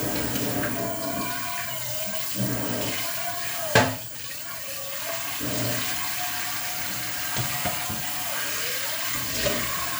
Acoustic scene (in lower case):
kitchen